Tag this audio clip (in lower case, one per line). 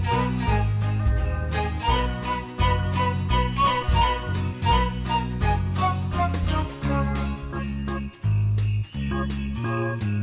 theme music
music